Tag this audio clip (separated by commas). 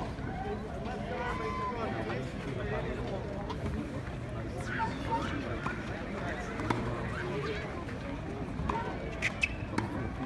playing tennis